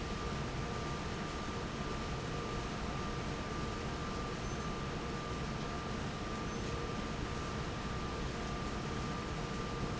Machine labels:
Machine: fan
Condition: normal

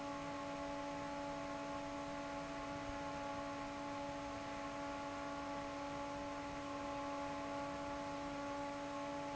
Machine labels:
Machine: fan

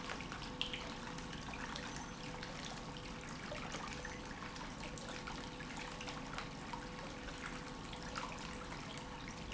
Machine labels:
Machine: pump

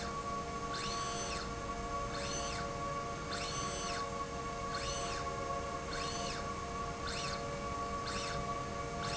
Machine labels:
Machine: slide rail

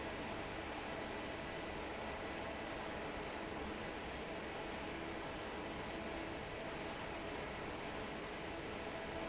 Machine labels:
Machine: fan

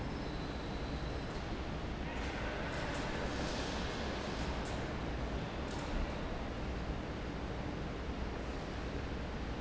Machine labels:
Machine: fan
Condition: normal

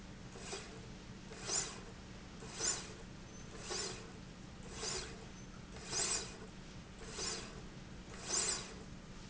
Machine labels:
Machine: slide rail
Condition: normal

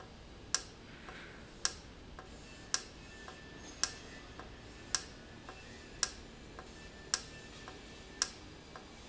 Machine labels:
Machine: valve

